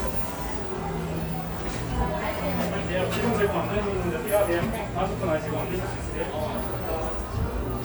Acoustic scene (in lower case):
cafe